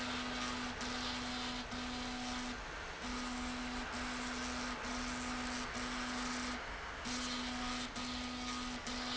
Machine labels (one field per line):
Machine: slide rail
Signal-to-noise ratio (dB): 0 dB